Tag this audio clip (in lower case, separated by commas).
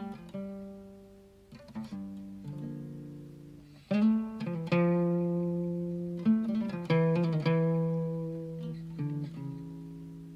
musical instrument, music, guitar